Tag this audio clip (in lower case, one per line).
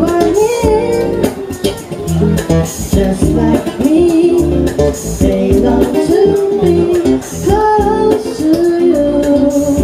female singing
wedding music
music